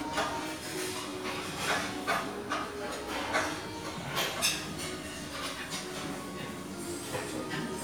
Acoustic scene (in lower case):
restaurant